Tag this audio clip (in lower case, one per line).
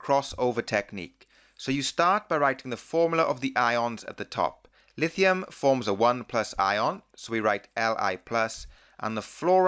speech